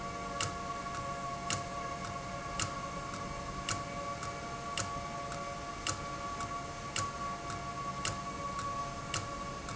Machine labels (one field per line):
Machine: valve